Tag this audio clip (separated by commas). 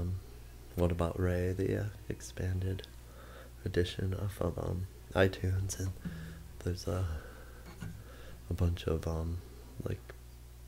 Guitar, Music, Musical instrument, Speech